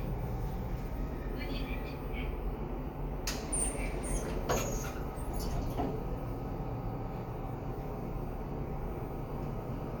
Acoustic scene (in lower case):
elevator